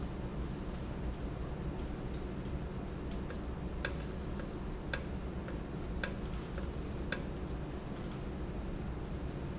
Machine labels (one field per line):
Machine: valve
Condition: normal